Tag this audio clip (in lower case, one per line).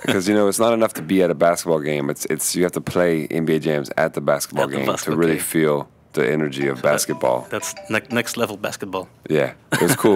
speech